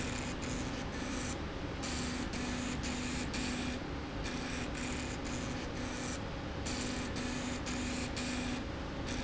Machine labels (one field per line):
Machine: slide rail